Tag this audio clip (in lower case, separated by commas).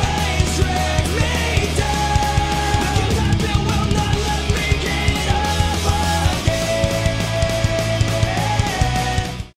exciting music, music